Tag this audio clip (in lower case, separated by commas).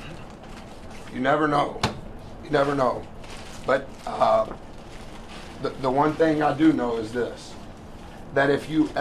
speech